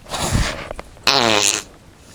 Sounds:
fart

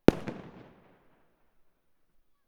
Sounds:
explosion, fireworks

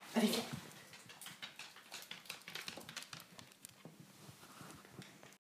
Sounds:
dog, pets, animal

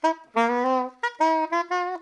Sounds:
music, musical instrument, woodwind instrument

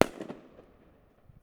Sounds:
explosion, fireworks

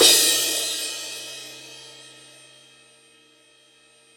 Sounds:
music, percussion, cymbal, musical instrument, crash cymbal

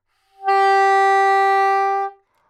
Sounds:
wind instrument, musical instrument, music

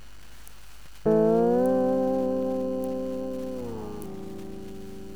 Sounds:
music, musical instrument, plucked string instrument, guitar

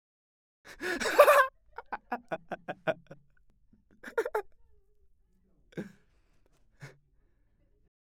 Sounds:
laughter, human voice

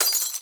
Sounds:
glass, shatter

